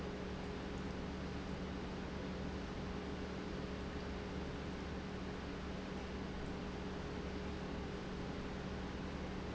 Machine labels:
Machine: pump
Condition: normal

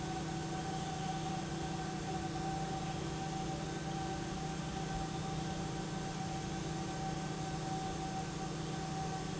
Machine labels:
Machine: pump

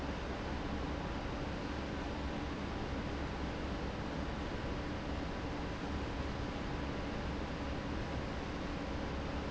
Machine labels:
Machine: fan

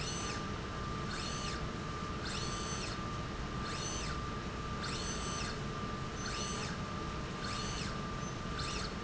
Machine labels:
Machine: slide rail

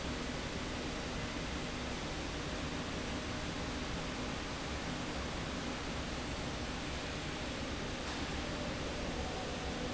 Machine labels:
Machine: slide rail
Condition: normal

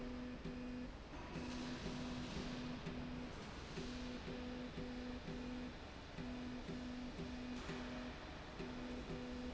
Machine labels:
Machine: slide rail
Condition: normal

